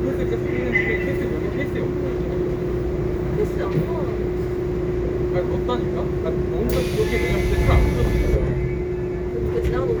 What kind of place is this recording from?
subway train